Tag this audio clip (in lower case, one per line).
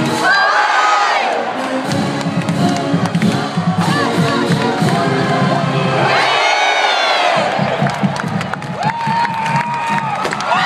speech
crowd
cheering
music